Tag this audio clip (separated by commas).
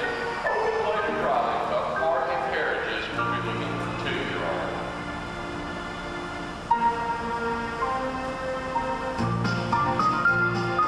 Speech, Music